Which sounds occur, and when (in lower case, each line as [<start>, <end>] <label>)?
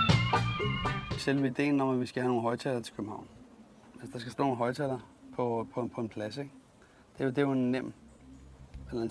[0.00, 1.56] music
[1.09, 3.34] man speaking
[1.23, 9.10] wind
[3.86, 5.12] man speaking
[4.91, 5.03] generic impact sounds
[5.30, 6.57] man speaking
[6.76, 7.02] breathing
[7.09, 7.95] man speaking
[8.65, 8.77] tick